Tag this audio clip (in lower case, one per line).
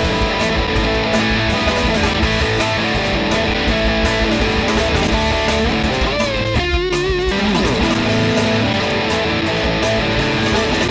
bass guitar
musical instrument
music
playing bass guitar
plucked string instrument
guitar
strum